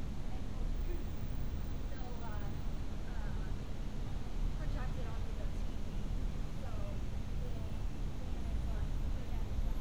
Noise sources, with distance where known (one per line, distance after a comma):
person or small group talking, far